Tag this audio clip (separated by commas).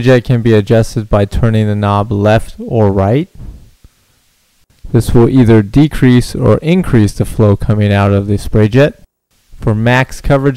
Speech